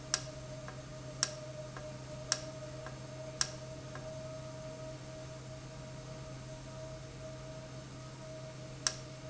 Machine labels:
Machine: valve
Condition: normal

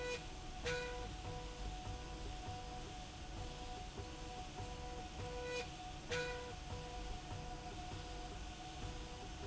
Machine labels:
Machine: slide rail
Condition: normal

